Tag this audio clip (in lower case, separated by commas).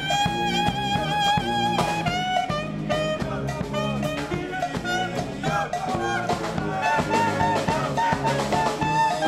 saxophone, brass instrument, music, musical instrument